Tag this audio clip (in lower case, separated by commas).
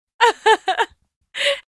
chuckle, laughter, human voice